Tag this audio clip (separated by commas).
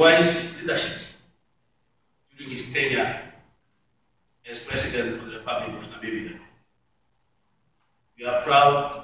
inside a large room or hall, Speech